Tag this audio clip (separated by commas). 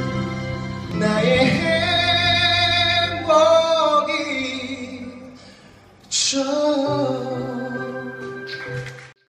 Male singing, Music